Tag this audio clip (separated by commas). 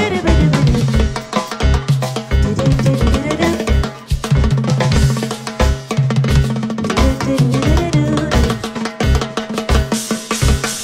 playing timbales